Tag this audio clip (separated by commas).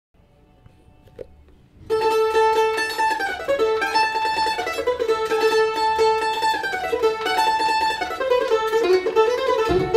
Country, Music, Bluegrass, Mandolin